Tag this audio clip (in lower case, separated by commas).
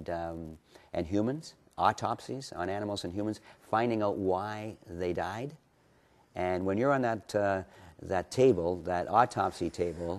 speech